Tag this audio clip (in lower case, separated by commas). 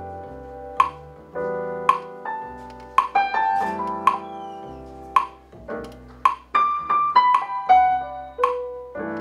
metronome